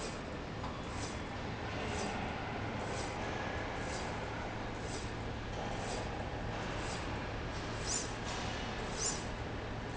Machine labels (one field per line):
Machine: slide rail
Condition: normal